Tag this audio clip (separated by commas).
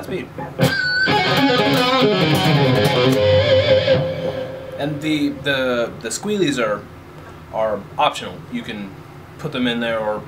Speech, Music, Tapping (guitar technique), Guitar, Plucked string instrument, Musical instrument